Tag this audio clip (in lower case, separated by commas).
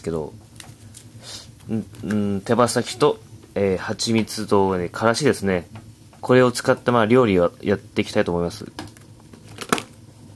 speech